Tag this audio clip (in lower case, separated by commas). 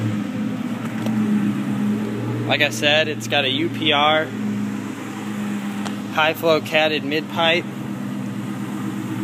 vehicle, speech, outside, urban or man-made, car